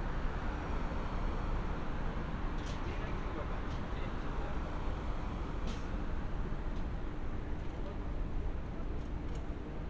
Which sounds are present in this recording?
person or small group talking